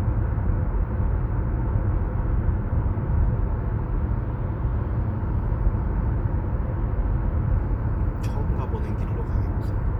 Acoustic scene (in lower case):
car